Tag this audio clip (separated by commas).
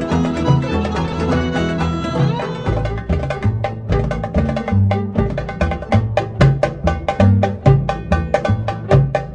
Music, Folk music